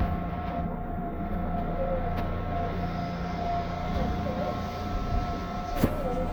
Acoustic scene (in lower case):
subway train